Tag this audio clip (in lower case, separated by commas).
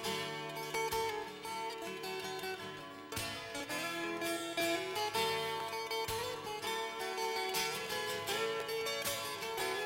music